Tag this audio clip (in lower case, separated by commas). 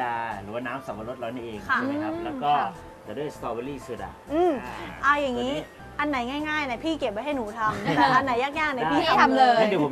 music, speech